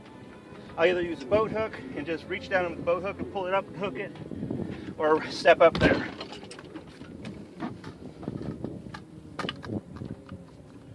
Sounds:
Speech, Music

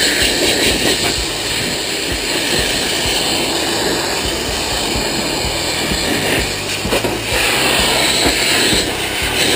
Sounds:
Music

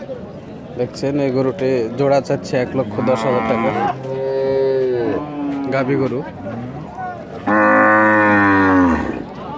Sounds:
cow lowing

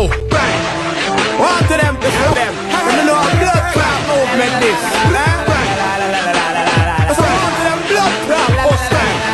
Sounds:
Music

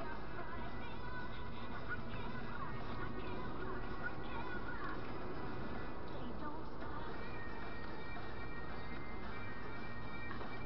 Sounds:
Music

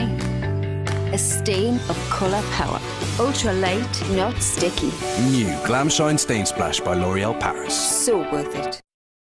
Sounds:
Music, Speech

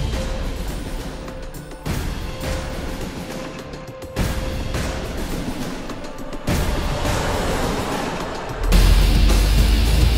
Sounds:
Music

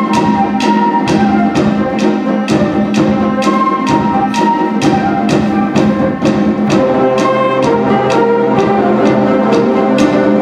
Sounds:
inside a large room or hall, Music

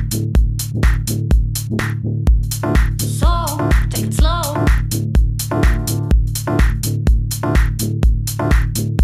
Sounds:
Music

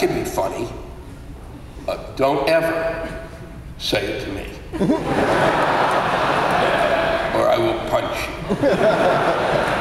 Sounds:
Speech

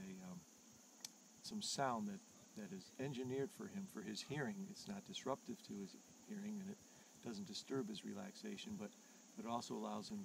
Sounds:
Speech

